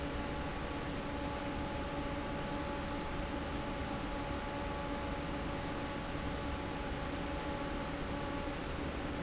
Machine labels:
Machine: fan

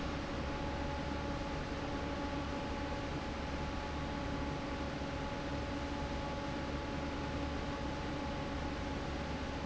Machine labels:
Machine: fan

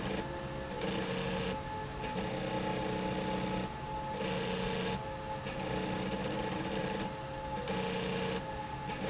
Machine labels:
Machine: slide rail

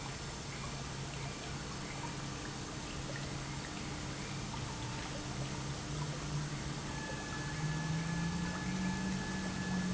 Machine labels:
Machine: pump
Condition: normal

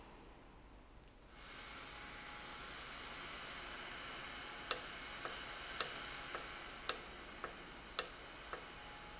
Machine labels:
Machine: valve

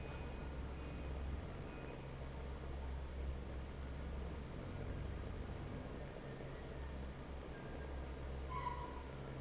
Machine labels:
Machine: fan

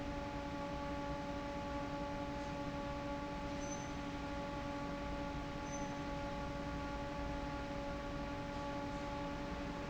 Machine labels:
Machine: fan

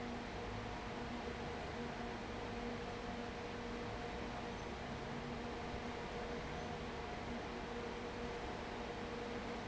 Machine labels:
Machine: fan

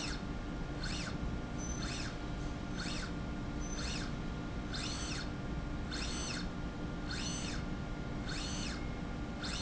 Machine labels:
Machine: slide rail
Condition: normal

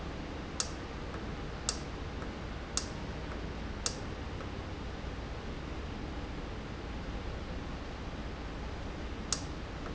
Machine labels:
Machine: valve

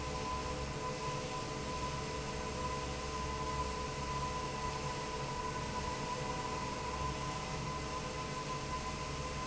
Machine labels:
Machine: fan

